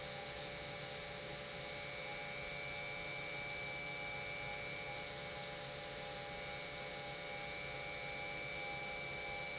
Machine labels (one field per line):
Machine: pump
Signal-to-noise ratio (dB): 6 dB